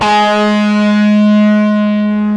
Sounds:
electric guitar, guitar, bass guitar, music, musical instrument, plucked string instrument

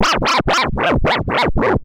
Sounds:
music, musical instrument, scratching (performance technique)

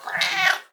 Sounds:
cat, animal, meow, pets

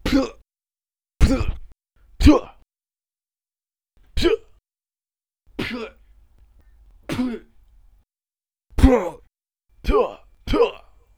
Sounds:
human voice

